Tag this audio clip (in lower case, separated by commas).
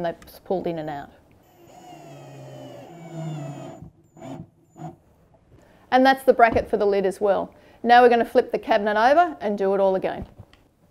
speech